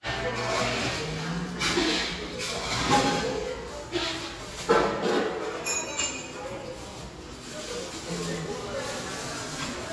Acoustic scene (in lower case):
cafe